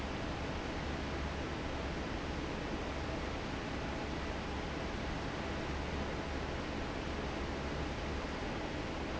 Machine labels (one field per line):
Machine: fan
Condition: normal